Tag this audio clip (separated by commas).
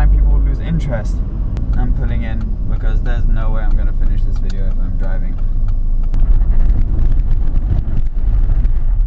outside, rural or natural, outside, urban or man-made, Vehicle, Speech, Car